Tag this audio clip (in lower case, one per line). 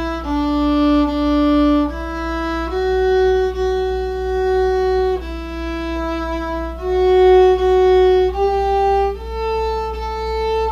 musical instrument
music
violin
fiddle
bowed string instrument